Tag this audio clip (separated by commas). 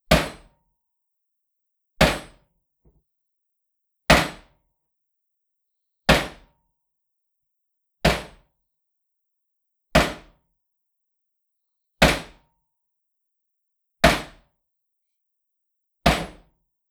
Hammer, Tools